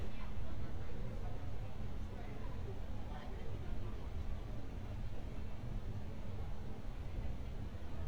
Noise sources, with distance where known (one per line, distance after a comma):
person or small group talking, near